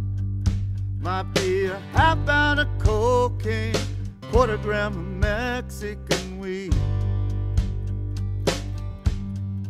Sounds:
Music

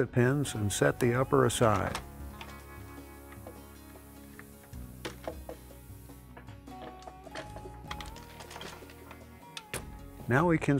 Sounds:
Speech, Music

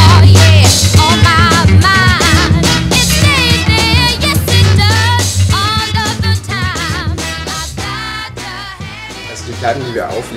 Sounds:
Speech, Music

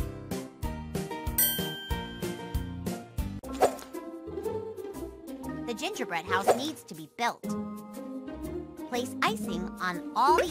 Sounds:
Child speech

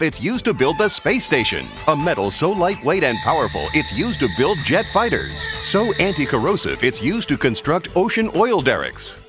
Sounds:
Speech, Music

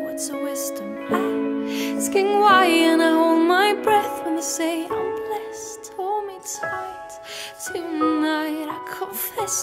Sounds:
Music

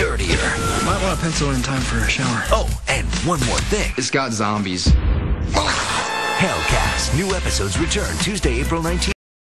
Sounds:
Music, inside a large room or hall, Speech

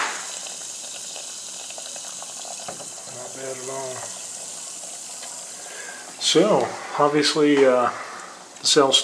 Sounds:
Water, Speech, Gush

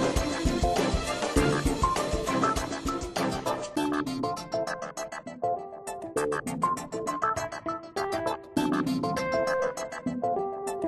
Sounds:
Music

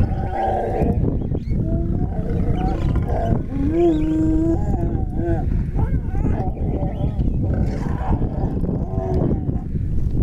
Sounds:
lions growling

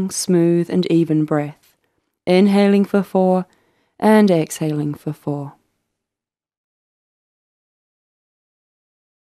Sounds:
Speech

